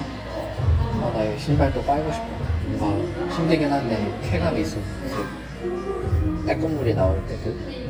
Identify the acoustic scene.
cafe